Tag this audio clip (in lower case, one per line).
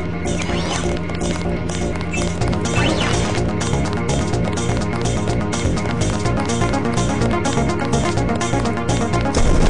music